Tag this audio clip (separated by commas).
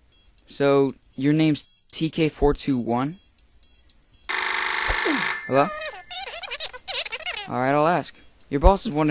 Music, Speech, inside a small room